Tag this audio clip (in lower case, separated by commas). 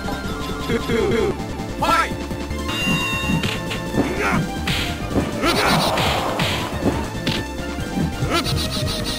music, speech